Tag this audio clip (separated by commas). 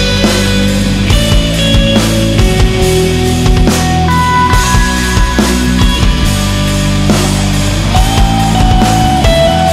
Music, Pop music